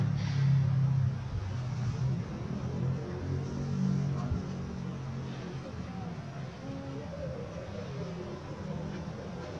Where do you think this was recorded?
in a residential area